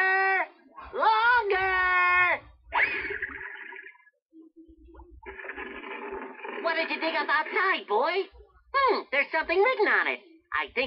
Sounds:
Speech, inside a small room

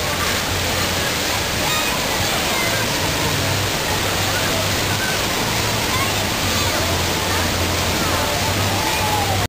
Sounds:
Water, Speech

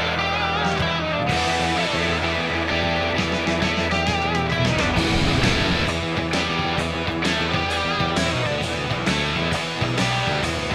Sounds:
Guitar, Music, Plucked string instrument, Musical instrument

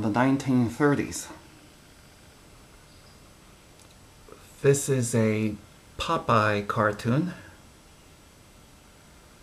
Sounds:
Speech

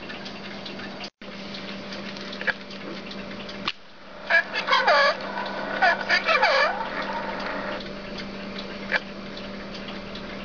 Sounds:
Speech, inside a small room

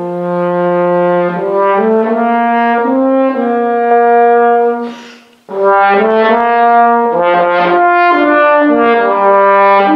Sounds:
playing french horn

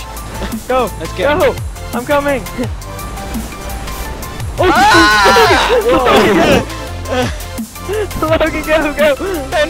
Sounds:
Music, Speech

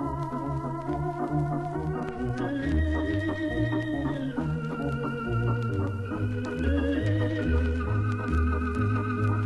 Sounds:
Hammond organ, Organ

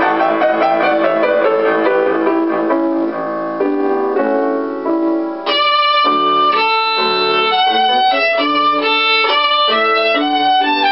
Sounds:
Musical instrument, Violin, Music

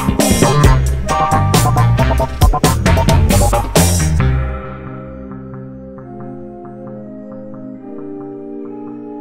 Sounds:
playing synthesizer

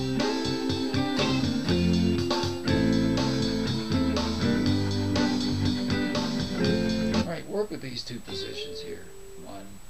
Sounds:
Guitar, Plucked string instrument, Music, Musical instrument, Speech, Electric guitar

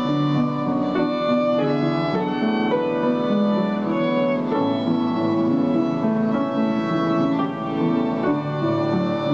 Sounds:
fiddle, Music, Musical instrument

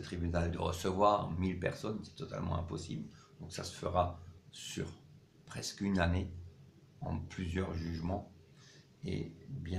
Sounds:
Speech

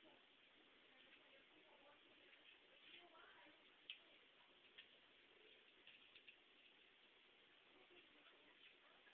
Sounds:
Silence

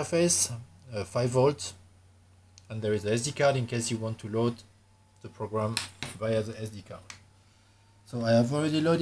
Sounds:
Speech

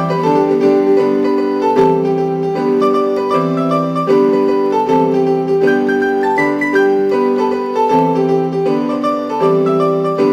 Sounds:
Music

